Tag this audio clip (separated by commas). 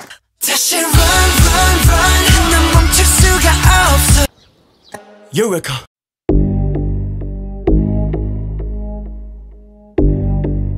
Music, Speech